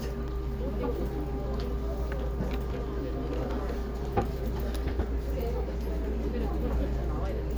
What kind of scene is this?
crowded indoor space